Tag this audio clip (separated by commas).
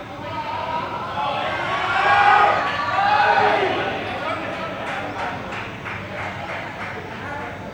Shout, Cheering, Human voice, Human group actions